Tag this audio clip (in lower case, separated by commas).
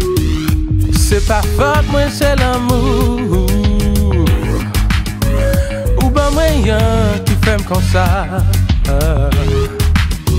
music, jazz